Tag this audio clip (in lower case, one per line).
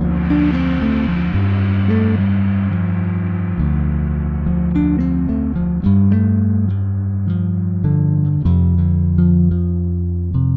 gong